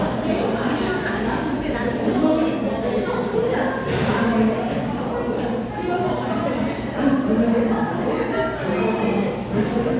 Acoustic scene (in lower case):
crowded indoor space